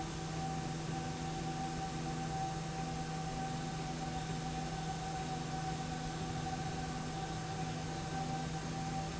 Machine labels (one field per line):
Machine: slide rail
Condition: normal